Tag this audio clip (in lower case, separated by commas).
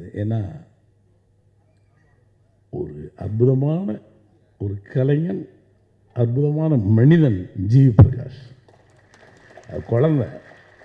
man speaking, narration, speech